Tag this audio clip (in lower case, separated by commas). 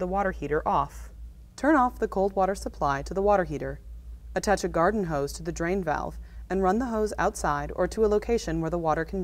speech